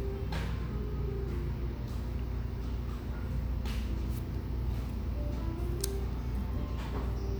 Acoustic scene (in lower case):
cafe